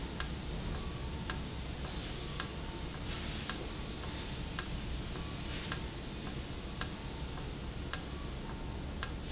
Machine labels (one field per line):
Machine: valve